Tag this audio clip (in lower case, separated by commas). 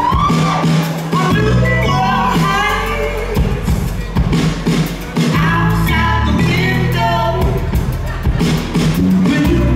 music